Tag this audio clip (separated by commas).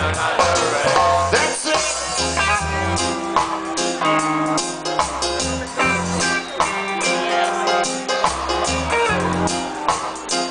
Speech, Music